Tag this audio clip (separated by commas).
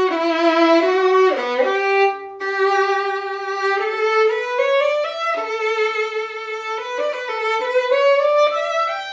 Music, Musical instrument, fiddle